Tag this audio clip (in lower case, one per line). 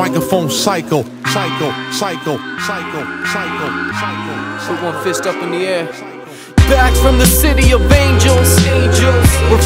speech
music